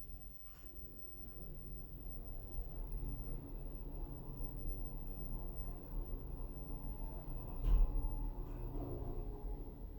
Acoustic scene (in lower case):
elevator